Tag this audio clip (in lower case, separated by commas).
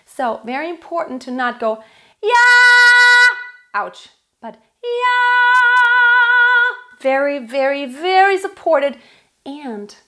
children shouting